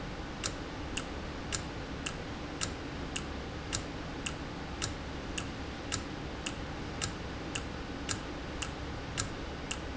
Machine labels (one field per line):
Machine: valve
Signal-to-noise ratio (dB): -6 dB